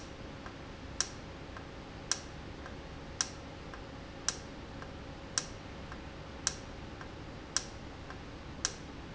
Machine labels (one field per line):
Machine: valve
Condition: normal